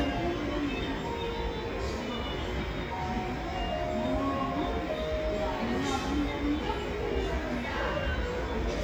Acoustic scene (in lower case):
cafe